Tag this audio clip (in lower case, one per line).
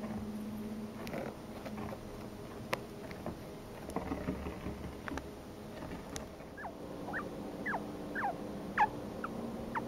chinchilla barking